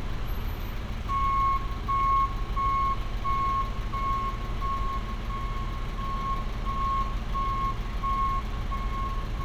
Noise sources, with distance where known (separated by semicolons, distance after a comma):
large-sounding engine, near; reverse beeper, near